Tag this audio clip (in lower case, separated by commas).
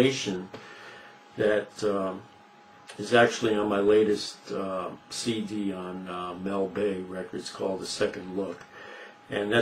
speech